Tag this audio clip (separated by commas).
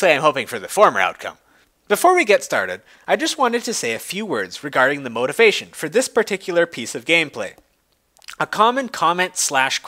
Speech